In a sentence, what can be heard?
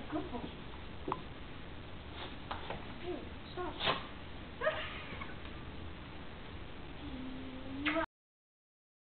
A woman speaks, small footsteps